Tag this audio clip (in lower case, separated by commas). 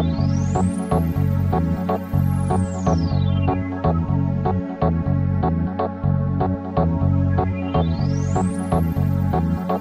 synthesizer, music